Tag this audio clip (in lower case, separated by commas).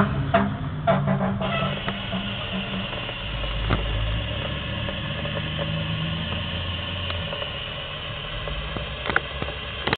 vehicle